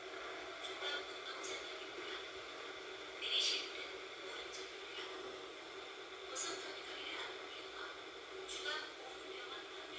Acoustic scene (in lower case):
subway train